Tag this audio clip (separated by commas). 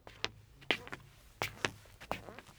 Squeak, Walk